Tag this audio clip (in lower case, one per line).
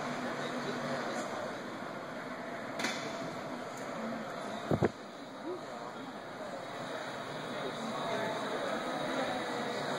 speech